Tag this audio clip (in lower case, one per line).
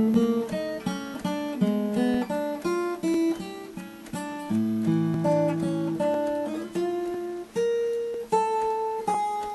guitar
plucked string instrument
musical instrument
acoustic guitar
music